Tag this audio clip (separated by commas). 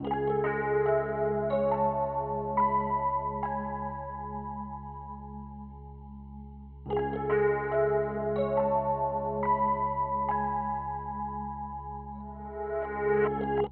Piano, Keyboard (musical), Music, Musical instrument